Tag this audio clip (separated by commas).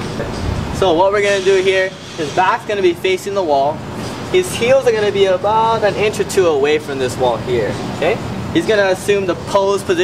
Speech, Male speech